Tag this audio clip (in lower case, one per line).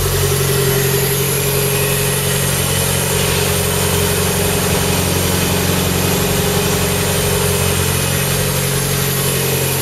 engine
car
inside a large room or hall
vehicle
medium engine (mid frequency)